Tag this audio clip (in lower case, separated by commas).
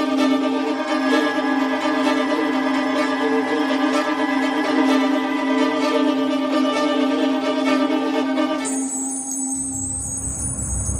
music, string section, violin